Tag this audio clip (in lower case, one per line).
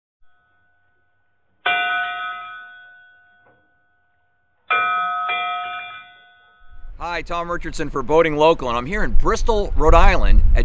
speech